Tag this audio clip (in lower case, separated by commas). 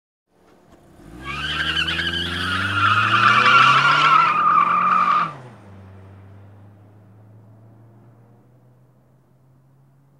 skidding